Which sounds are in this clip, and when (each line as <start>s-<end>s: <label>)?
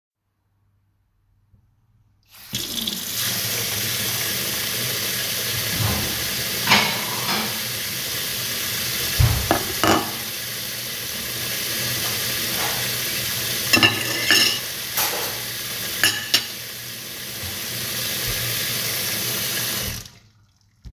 2.3s-20.1s: running water
6.6s-7.8s: cutlery and dishes
9.4s-10.2s: cutlery and dishes
13.7s-16.4s: cutlery and dishes